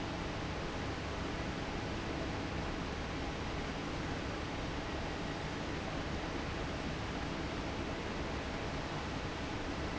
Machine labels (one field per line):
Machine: fan